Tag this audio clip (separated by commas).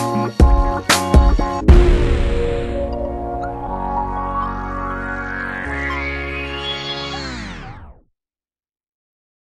Music